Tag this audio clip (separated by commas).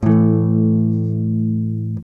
Electric guitar, Musical instrument, Plucked string instrument, Strum, Guitar, Music